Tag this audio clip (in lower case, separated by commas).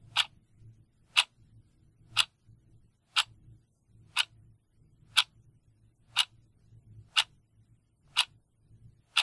clock, tick-tock